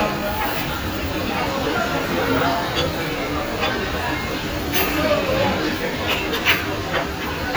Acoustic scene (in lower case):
restaurant